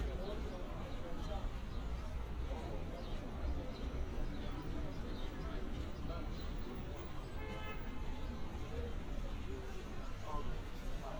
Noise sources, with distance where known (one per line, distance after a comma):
car horn, far
person or small group talking